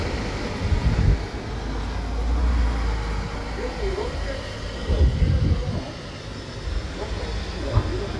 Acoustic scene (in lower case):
residential area